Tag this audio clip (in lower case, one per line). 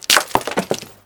shatter
glass